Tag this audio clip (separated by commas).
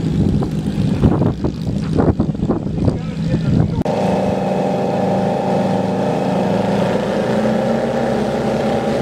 Fixed-wing aircraft, Vehicle, Aircraft, Speech